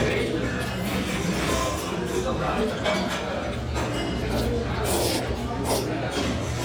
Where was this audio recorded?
in a restaurant